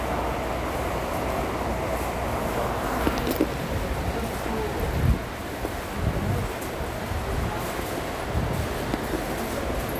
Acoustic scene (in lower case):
subway station